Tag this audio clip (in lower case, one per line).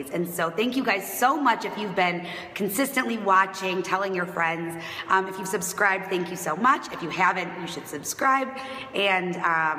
speech
female speech